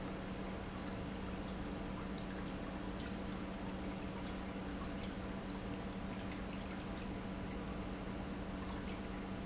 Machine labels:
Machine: pump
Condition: normal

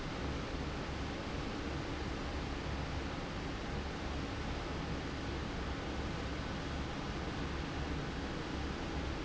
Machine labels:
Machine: fan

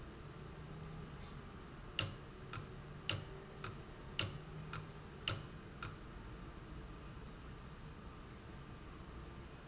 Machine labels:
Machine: valve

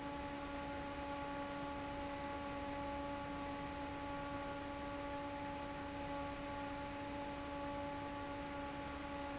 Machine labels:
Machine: fan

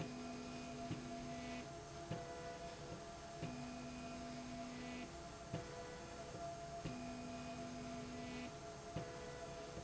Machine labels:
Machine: slide rail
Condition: normal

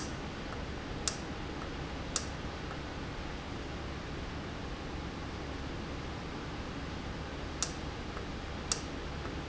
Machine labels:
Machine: valve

